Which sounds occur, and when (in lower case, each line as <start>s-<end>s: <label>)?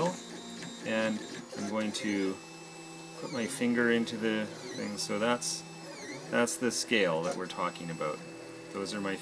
0.0s-0.2s: male speech
0.0s-9.2s: mechanisms
0.8s-1.2s: male speech
1.5s-2.4s: male speech
3.2s-4.5s: male speech
4.7s-5.6s: male speech
6.3s-8.2s: male speech
8.7s-9.2s: male speech